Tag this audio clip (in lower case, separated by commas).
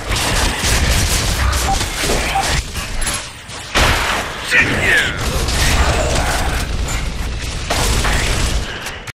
speech